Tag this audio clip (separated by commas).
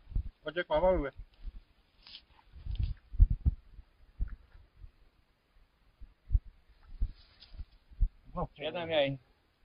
Speech